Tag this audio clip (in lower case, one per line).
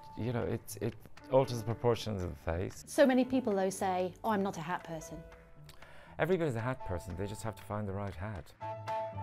speech
music